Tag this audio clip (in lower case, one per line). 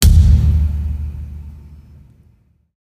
thump